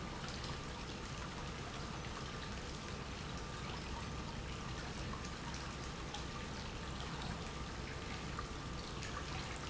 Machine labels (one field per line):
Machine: pump